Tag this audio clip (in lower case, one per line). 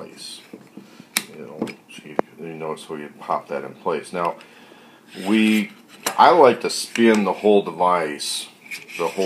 inside a small room
speech